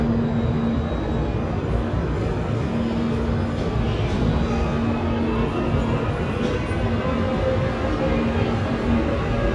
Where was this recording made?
in a subway station